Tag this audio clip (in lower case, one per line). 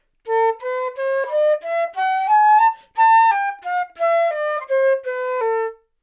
music
wind instrument
musical instrument